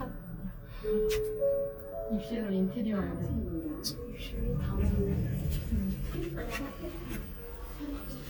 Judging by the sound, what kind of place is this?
elevator